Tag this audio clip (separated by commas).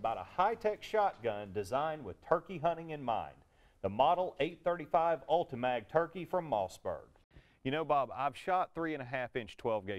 Speech